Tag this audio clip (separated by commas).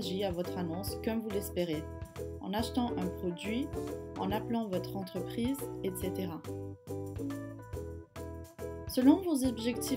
Speech, Music